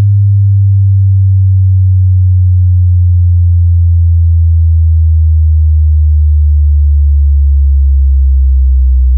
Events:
[0.00, 9.15] sine wave

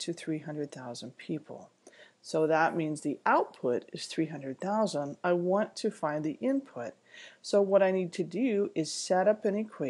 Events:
[0.01, 1.61] man speaking
[0.01, 9.85] noise
[2.22, 6.91] man speaking
[7.42, 9.85] man speaking

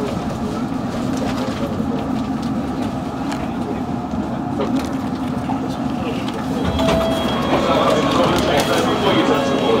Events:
[0.00, 0.68] man speaking
[0.00, 1.73] clickety-clack
[0.00, 9.80] metro
[1.25, 2.19] man speaking
[1.97, 2.48] clickety-clack
[2.78, 3.53] clickety-clack
[2.80, 4.58] man speaking
[4.11, 5.82] clickety-clack
[5.53, 6.73] man speaking
[6.11, 9.80] clickety-clack
[6.62, 9.80] alarm
[7.43, 9.80] man speaking

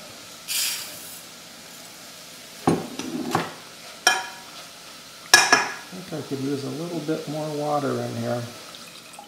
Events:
[0.00, 9.25] mechanisms
[0.00, 9.25] water tap
[0.45, 0.86] scrape
[2.65, 2.76] generic impact sounds
[2.78, 3.32] scrape
[2.95, 3.04] generic impact sounds
[3.31, 3.47] generic impact sounds
[4.04, 4.21] generic impact sounds
[5.30, 5.61] generic impact sounds
[5.80, 8.53] man speaking

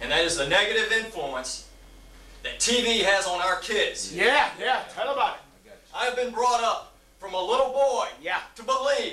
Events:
[0.00, 1.74] man speaking
[0.00, 9.12] conversation
[0.00, 9.12] mechanisms
[2.46, 5.46] man speaking
[5.72, 6.94] man speaking
[7.21, 9.12] man speaking

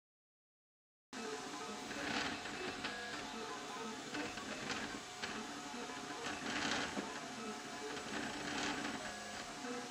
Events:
[1.10, 9.90] music
[1.11, 9.90] mechanisms
[1.86, 2.40] generic impact sounds
[2.63, 3.17] generic impact sounds
[4.09, 4.96] generic impact sounds
[5.13, 5.46] generic impact sounds
[6.21, 6.96] generic impact sounds
[7.90, 8.93] generic impact sounds
[9.30, 9.79] generic impact sounds

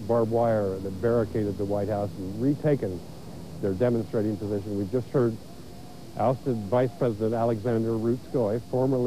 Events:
[0.00, 9.05] mechanisms
[0.07, 2.98] male speech
[3.64, 5.35] male speech
[5.45, 6.97] speech
[6.17, 9.05] male speech
[8.25, 8.93] speech

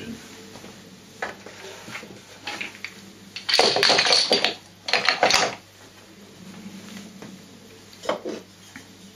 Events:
[0.00, 0.19] generic impact sounds
[0.00, 9.15] mechanisms
[0.50, 0.77] generic impact sounds
[1.13, 2.15] generic impact sounds
[2.38, 2.90] generic impact sounds
[3.31, 4.63] generic impact sounds
[4.86, 5.54] generic impact sounds
[5.73, 6.02] generic impact sounds
[6.45, 7.37] generic impact sounds
[7.91, 8.40] generic impact sounds
[8.63, 8.85] generic impact sounds

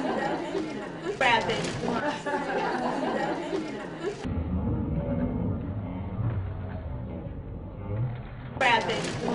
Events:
[0.00, 0.37] laughter
[0.00, 4.35] speech babble
[0.21, 0.86] female speech
[1.08, 1.23] human voice
[1.27, 1.68] female speech
[1.47, 1.82] sound effect
[1.87, 2.21] human voice
[2.31, 3.28] laughter
[2.59, 3.05] female speech
[3.19, 4.01] female speech
[4.10, 4.21] female speech
[4.33, 8.69] sound effect
[8.68, 9.14] female speech
[8.68, 9.34] speech babble
[8.88, 9.24] single-lens reflex camera

